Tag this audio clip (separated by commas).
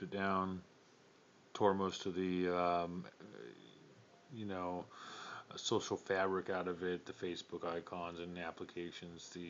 Speech